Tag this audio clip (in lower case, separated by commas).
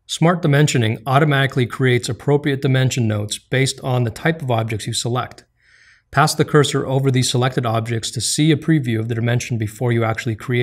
speech